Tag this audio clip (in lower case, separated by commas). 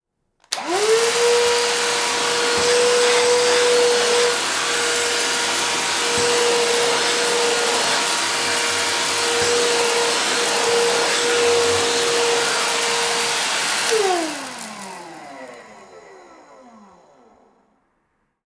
home sounds